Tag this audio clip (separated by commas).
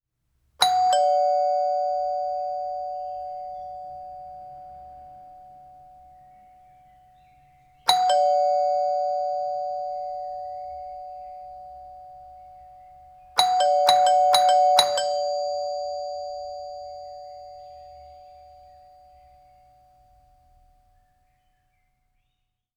Door, home sounds, Doorbell, Alarm